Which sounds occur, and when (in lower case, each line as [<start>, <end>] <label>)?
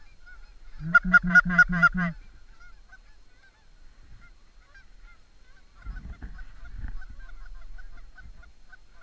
[0.00, 2.08] honk
[0.00, 9.02] background noise
[2.48, 3.72] honk
[4.13, 5.70] honk
[5.83, 9.02] honk